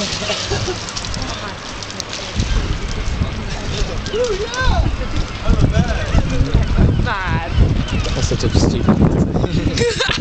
Water is splashing, the wind is blowing, seagulls are calling, and adult males and females are speaking